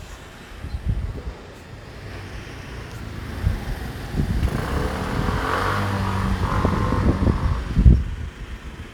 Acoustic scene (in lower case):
residential area